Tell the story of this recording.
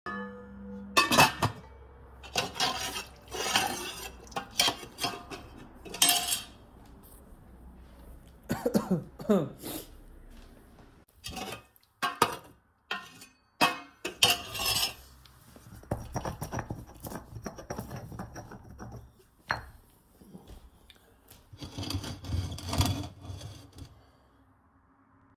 I was cooking food in the kitchen. I opened the cupboard door to get spices, and we can hear the spoon on the cooking utensils.